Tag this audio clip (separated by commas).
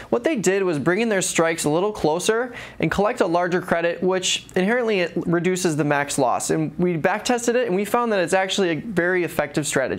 Speech